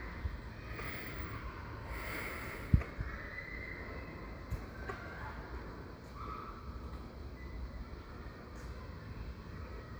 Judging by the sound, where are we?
in a residential area